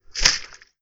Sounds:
liquid
splatter

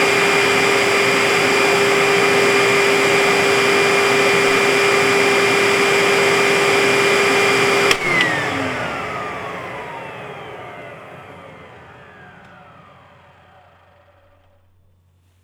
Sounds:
domestic sounds

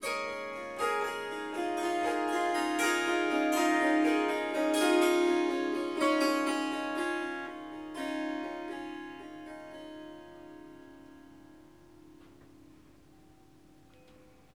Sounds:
harp
music
musical instrument

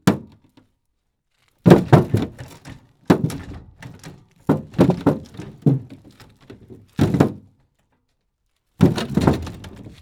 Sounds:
thump

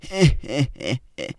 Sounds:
laughter
human voice

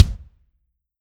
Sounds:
musical instrument
percussion
drum
music
bass drum

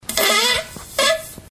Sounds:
fart

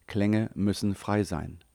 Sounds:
human voice

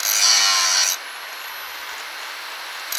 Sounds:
tools

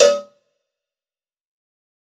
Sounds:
cowbell
bell

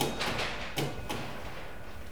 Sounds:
mechanisms

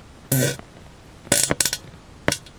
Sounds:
fart

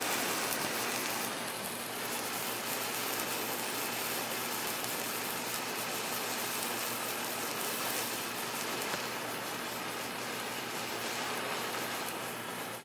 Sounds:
fire

